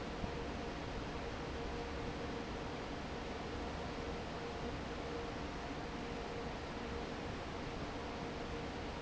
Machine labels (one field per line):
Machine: fan